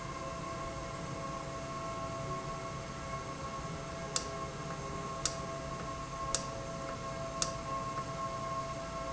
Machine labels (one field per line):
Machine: valve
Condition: normal